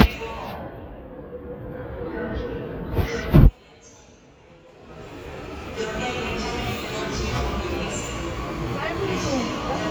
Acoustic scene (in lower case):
subway station